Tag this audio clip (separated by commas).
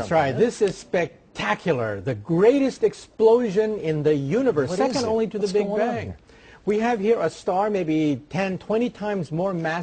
Speech